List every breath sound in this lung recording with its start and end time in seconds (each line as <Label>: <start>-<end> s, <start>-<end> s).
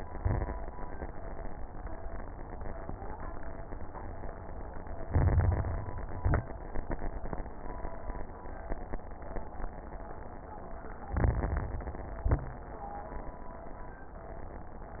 Inhalation: 5.02-5.98 s, 11.10-12.06 s
Exhalation: 0.00-0.60 s, 6.10-6.55 s, 12.18-12.63 s
Crackles: 0.00-0.60 s, 5.02-5.98 s, 6.10-6.55 s, 11.10-12.06 s, 12.18-12.63 s